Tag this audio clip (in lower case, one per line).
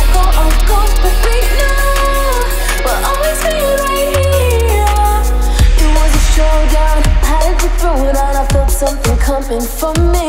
music